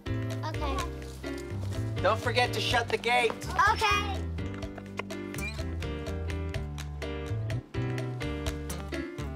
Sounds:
music
speech

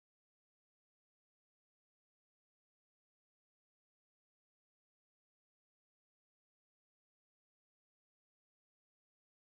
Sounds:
silence

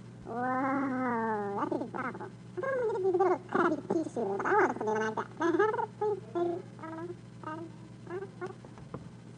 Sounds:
speech

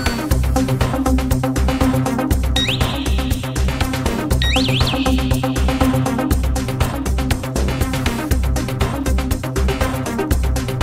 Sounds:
music

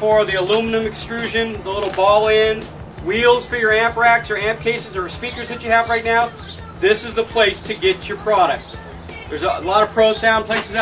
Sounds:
speech
music

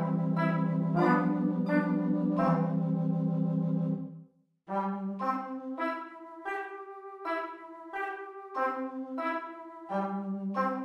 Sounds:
music
musical instrument

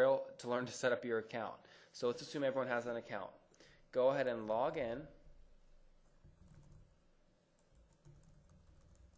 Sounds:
speech

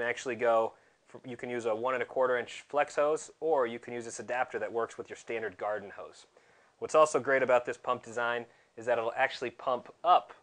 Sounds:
speech

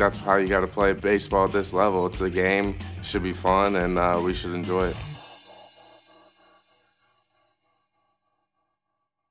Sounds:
music
speech

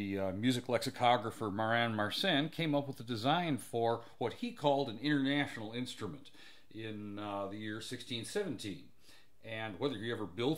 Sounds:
speech

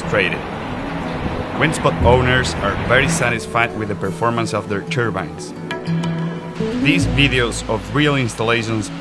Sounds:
speech
wind noise (microphone)
music

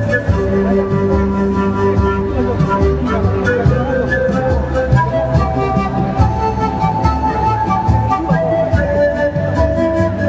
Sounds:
speech
music

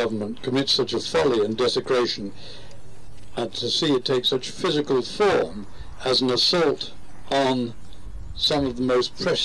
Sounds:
male speech
monologue
speech

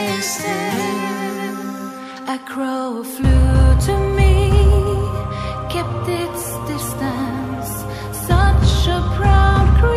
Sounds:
music

